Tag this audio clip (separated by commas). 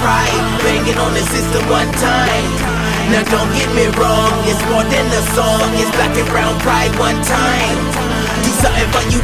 Music, Exciting music